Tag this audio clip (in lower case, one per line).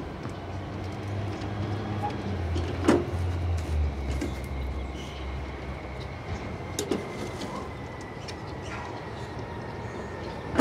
truck
vehicle